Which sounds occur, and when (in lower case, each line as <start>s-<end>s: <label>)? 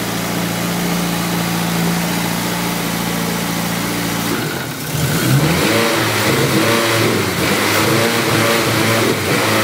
0.0s-9.6s: medium engine (mid frequency)
4.3s-4.7s: revving
4.9s-7.0s: revving
7.3s-9.1s: revving
9.2s-9.6s: revving